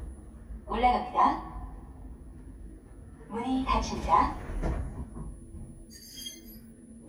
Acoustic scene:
elevator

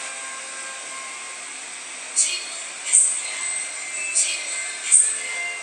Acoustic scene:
subway station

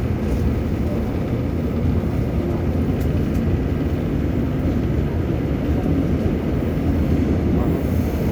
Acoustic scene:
subway train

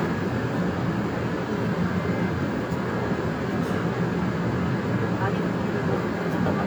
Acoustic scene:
subway train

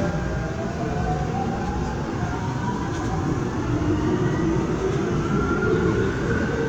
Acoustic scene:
subway train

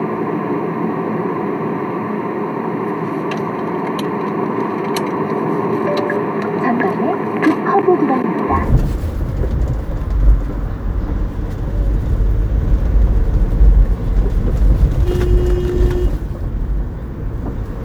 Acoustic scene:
car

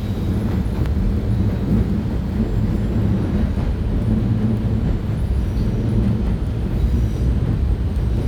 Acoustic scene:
subway train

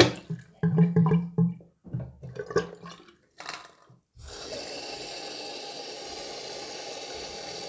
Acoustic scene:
restroom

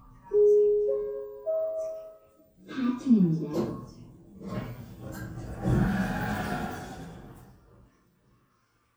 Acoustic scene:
elevator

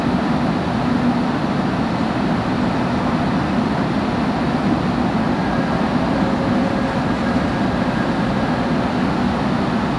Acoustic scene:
subway station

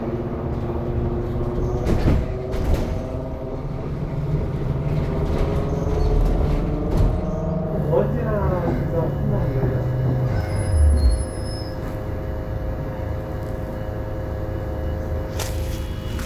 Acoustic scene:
bus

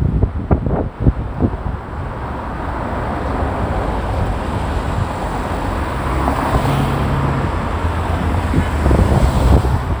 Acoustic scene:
street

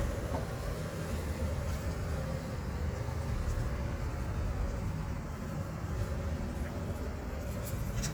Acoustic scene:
residential area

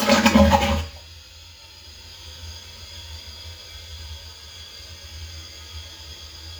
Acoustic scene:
restroom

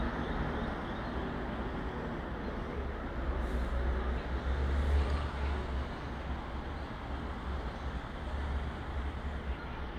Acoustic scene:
street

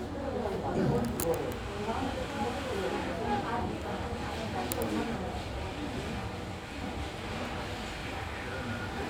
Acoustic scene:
crowded indoor space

